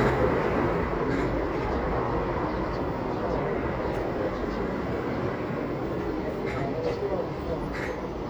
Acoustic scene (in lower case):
residential area